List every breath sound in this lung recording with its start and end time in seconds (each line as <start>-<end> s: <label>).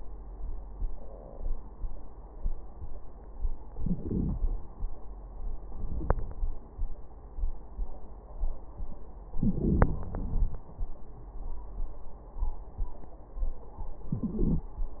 3.77-4.41 s: inhalation
5.84-6.73 s: wheeze
9.35-10.09 s: inhalation
10.07-10.69 s: exhalation
10.07-10.69 s: wheeze
14.12-14.74 s: inhalation